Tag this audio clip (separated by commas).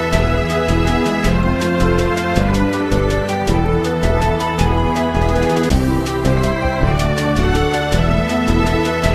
Video game music, Music